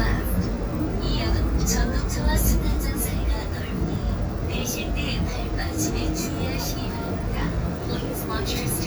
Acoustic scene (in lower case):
subway train